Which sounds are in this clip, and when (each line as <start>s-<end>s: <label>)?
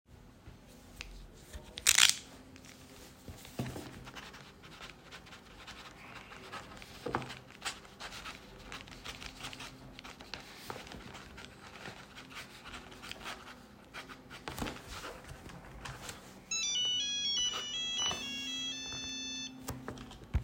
16.5s-19.6s: phone ringing